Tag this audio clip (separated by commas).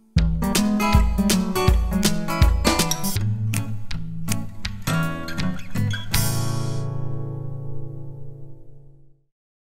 Music